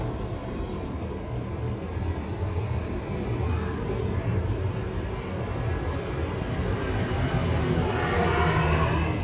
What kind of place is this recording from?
street